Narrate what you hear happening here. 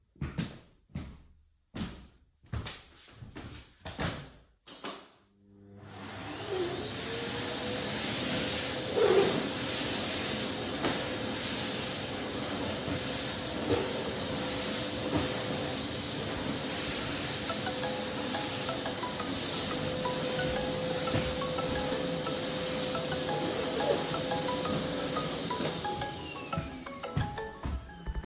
I walked to the vacuum cleaner, turned it on and started cleaning while continuing walking. Then my phone started ringing so I turned off the vacuum cleaner and went to the phone.